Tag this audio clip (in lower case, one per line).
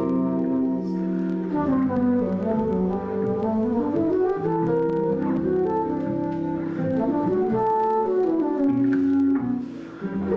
flute
woodwind instrument